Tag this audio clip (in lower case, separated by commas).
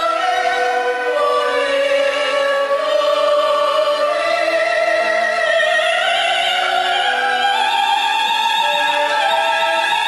singing, opera, music